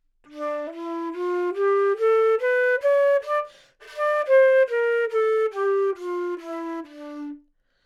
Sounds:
Musical instrument, Music, Wind instrument

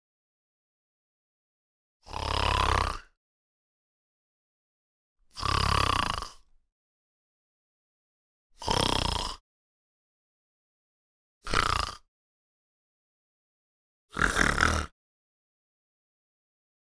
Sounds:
Respiratory sounds, Breathing

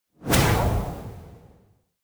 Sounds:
swoosh

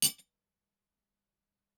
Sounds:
Cutlery, Domestic sounds

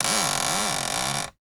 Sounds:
Door, Cupboard open or close, Domestic sounds

